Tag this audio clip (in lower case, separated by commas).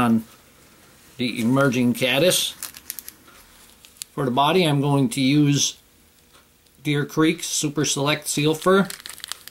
speech